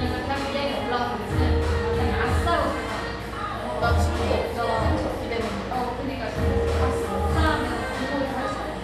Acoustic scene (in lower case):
cafe